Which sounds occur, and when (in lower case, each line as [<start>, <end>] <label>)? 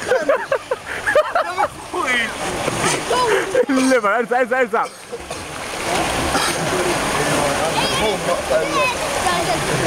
[0.00, 9.85] water
[1.02, 1.68] laughter
[3.24, 3.45] gasp
[5.56, 9.85] splatter
[6.27, 6.58] cough
[6.69, 9.85] man speaking